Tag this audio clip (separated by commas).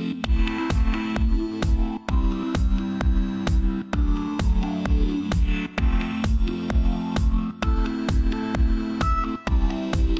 Music